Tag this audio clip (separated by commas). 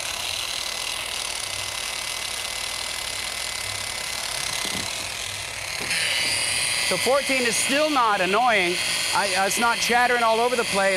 Speech